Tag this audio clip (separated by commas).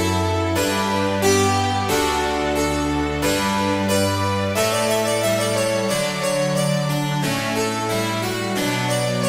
Piano, Keyboard (musical)